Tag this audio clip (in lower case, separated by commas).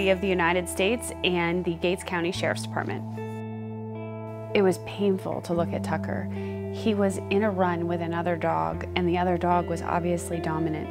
speech, music